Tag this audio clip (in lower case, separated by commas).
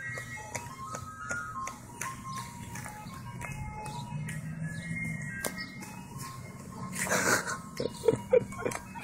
music